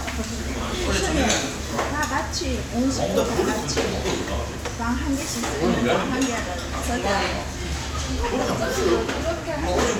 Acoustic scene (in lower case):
crowded indoor space